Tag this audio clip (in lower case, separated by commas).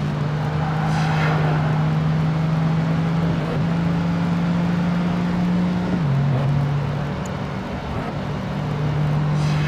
car passing by, car